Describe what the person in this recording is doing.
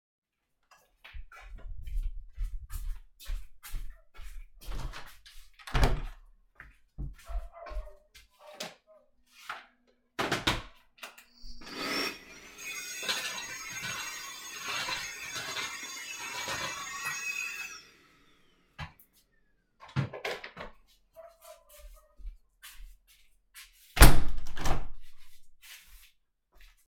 I opened the bedroom door. I went to the window. I opened the window. I took the vacuum clearner from the station and turned it on, vacuumed, put it back to into the station. I closed the window.